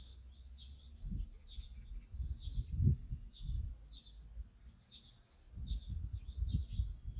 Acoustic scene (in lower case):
park